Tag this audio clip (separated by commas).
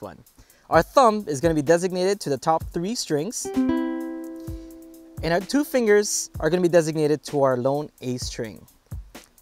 Speech, Mandolin, Music